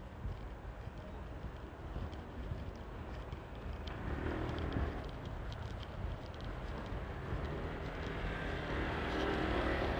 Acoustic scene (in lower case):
residential area